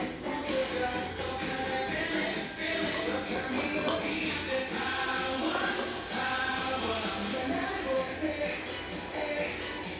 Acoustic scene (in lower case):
restaurant